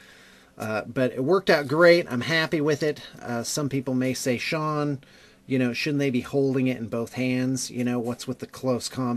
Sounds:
Speech

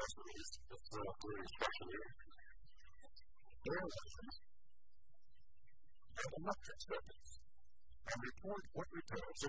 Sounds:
Speech

